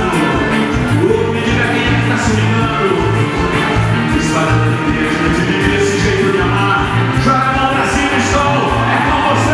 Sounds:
Music

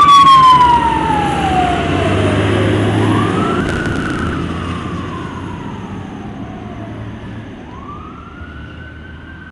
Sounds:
fire truck (siren), Emergency vehicle, Vehicle, Truck

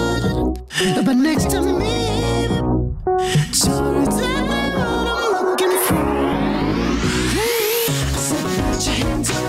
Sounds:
Music

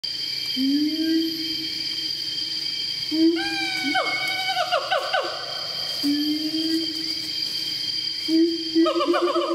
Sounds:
gibbon howling

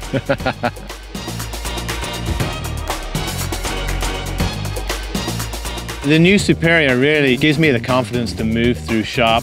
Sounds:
Music, Speech

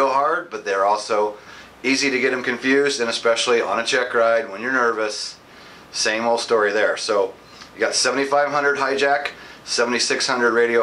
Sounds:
Speech

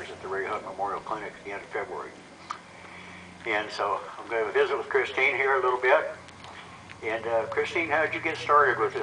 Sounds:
Speech

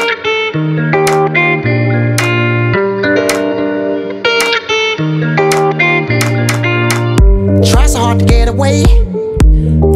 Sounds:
Music

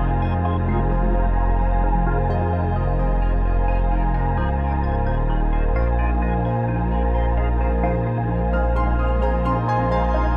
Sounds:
Music, Ambient music

